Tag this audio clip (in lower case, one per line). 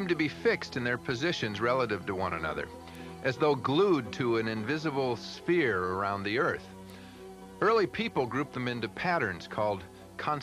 music
speech